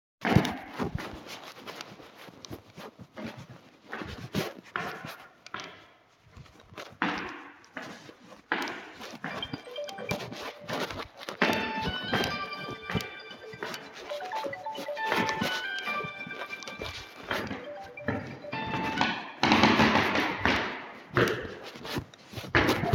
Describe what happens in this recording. I walked several steps while my phone was ringing, letting both sounds overlap before ending the recording.